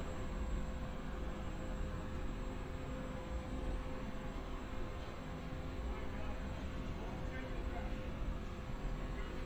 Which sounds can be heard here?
unidentified human voice